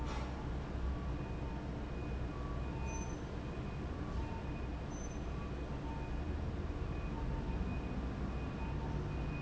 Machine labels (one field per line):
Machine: fan